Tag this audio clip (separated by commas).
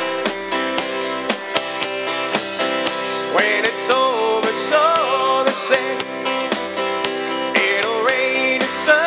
Music